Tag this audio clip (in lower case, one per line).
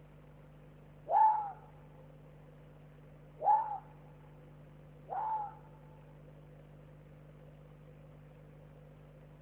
fox barking